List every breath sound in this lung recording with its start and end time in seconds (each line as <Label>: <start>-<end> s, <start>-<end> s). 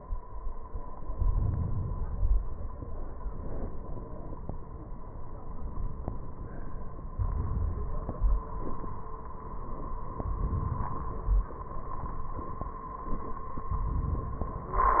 Inhalation: 0.99-2.00 s, 7.09-8.05 s, 10.12-11.36 s
Exhalation: 2.01-2.96 s